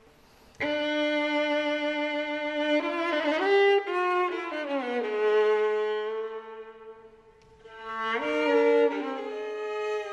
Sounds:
Music, Musical instrument, fiddle

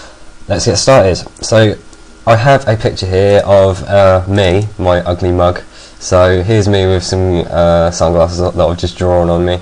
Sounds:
Speech

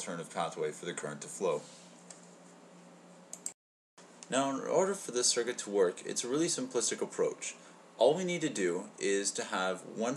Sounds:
Speech, Typing

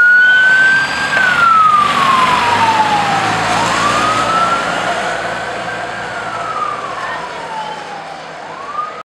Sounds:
Vehicle, Fire engine, Speech

